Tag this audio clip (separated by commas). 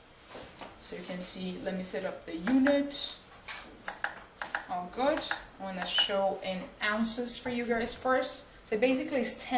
Speech